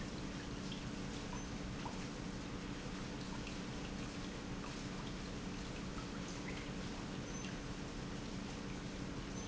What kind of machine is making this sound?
pump